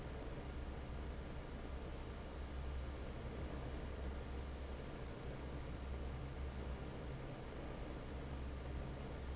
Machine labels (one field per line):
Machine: fan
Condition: normal